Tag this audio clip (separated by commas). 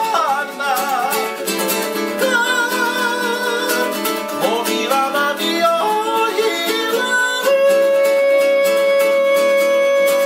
Ukulele, Guitar, Plucked string instrument, Musical instrument, Music